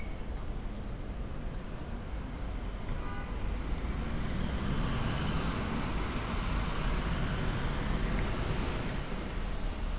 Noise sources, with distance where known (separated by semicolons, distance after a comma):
medium-sounding engine, near; large-sounding engine, near; car horn